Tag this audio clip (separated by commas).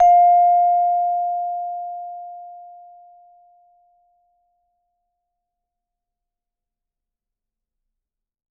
Musical instrument, Music, Mallet percussion, Percussion